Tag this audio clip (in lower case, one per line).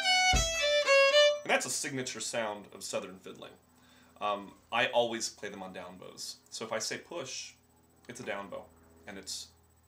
musical instrument
speech
violin
music